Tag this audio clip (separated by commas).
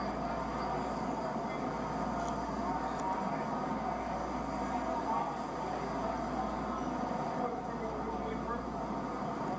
Speech, Vehicle